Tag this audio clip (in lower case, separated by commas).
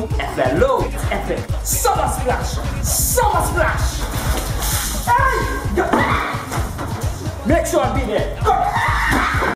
music, speech